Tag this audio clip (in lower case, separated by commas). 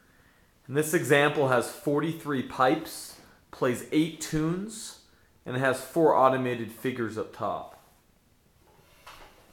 speech